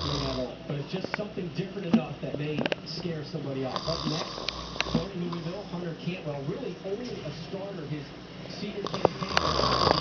Someone snores while the TV plays in the background